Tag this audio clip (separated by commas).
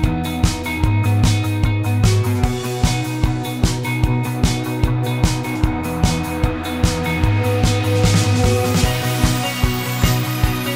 Music